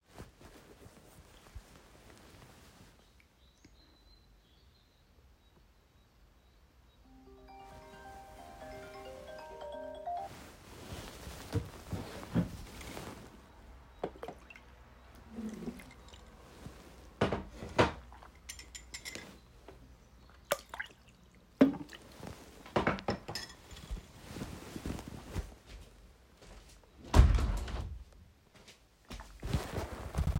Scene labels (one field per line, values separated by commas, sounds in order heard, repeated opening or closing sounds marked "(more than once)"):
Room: bedroom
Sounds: phone ringing, window